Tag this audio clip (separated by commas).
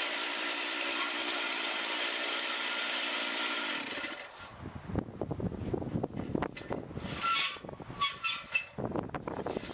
outside, rural or natural, Chainsaw